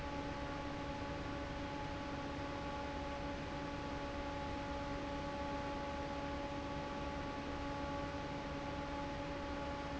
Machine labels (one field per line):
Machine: fan